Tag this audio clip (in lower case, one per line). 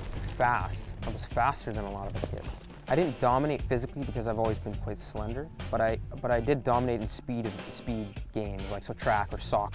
man speaking
run
speech
music
outside, urban or man-made